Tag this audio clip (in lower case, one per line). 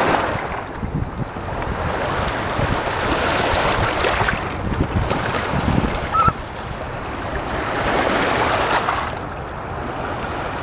outside, rural or natural
bird